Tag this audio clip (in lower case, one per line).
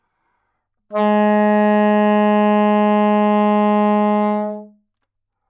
musical instrument
music
woodwind instrument